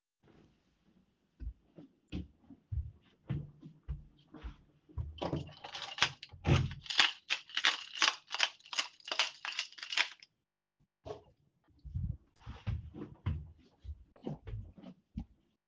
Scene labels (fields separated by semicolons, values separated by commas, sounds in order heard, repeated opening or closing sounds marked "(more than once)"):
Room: hallway; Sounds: footsteps, keys